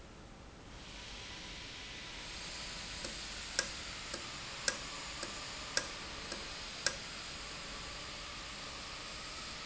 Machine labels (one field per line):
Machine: valve